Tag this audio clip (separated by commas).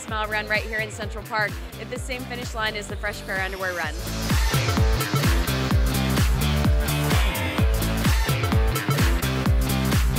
Speech, Music